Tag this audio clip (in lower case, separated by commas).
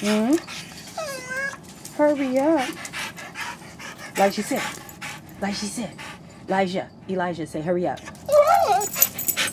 domestic animals, dog, whimper (dog), animal, speech